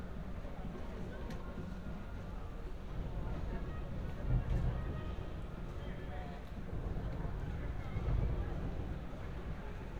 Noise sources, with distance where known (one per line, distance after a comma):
music from an unclear source
person or small group talking